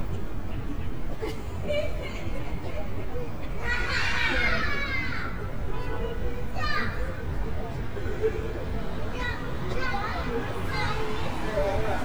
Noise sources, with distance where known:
person or small group shouting, near

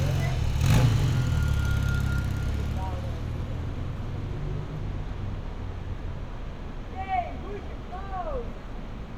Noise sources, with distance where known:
engine of unclear size
unidentified human voice, near

